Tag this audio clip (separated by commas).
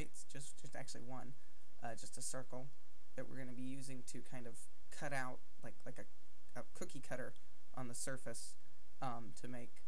Speech